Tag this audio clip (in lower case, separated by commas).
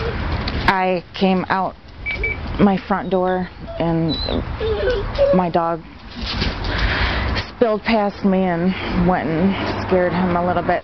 outside, urban or man-made, animal, speech